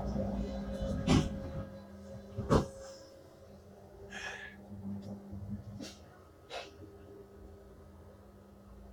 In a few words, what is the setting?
subway train